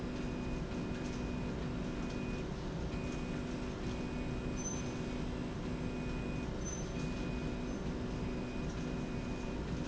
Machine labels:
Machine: slide rail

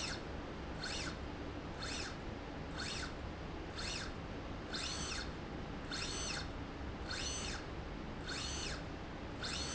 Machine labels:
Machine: slide rail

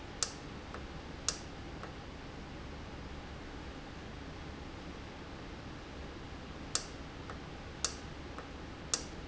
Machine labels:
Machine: valve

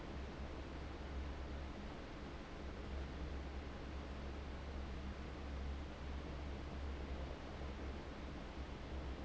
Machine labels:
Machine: fan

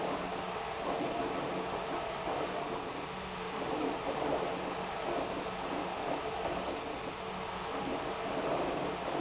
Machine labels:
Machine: pump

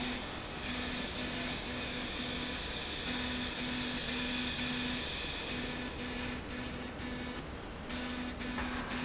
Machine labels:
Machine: slide rail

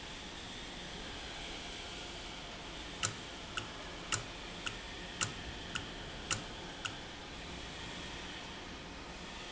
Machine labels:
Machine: valve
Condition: normal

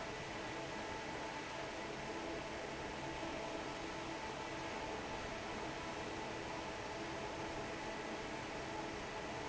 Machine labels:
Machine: fan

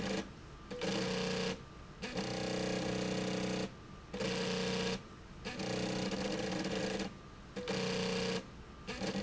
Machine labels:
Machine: slide rail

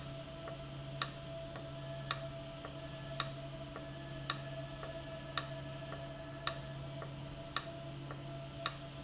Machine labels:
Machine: valve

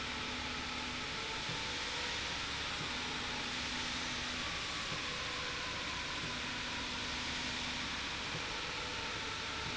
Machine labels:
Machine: slide rail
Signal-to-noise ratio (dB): -6 dB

